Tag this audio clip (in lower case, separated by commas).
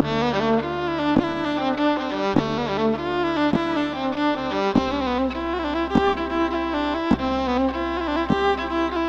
music, fiddle, musical instrument